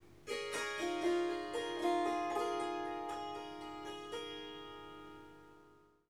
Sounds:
Music, Harp, Musical instrument

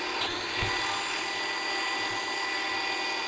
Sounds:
Domestic sounds

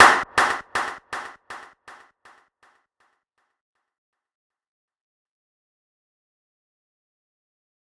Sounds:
Clapping, Hands

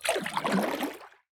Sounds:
Splash, Liquid

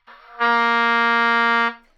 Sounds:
Music, Musical instrument, woodwind instrument

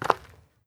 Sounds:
footsteps

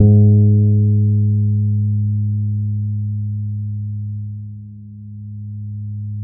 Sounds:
Bass guitar, Music, Plucked string instrument, Guitar, Musical instrument

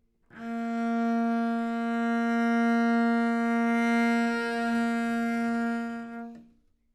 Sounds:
Musical instrument, Bowed string instrument, Music

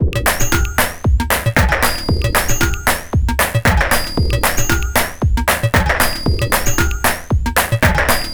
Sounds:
Music, Musical instrument, Percussion, Drum kit

